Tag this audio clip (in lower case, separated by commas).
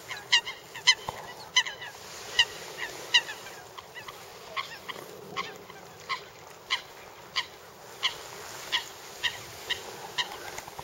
honk, fowl, goose